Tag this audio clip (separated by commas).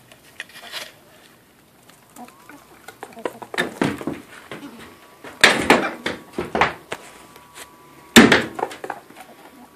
Chicken, Cluck, Fowl